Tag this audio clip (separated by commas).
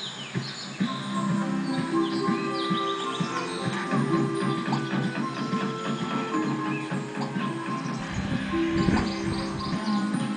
Music